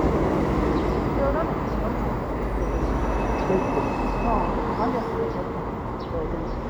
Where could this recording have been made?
in a residential area